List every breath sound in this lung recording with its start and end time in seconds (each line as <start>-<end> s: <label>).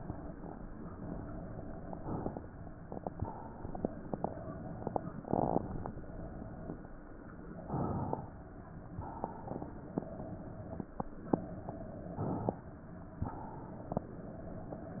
2.00-3.23 s: inhalation
3.23-4.17 s: exhalation
7.58-9.11 s: inhalation
9.11-10.81 s: exhalation
12.14-13.20 s: inhalation
13.20-14.70 s: exhalation